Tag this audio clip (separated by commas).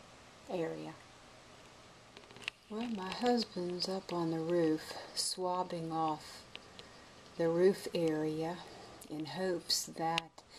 Speech